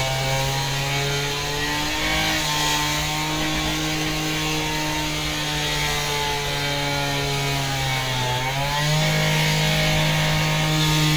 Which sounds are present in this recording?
unidentified powered saw